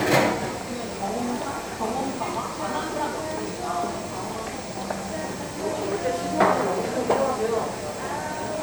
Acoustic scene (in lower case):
cafe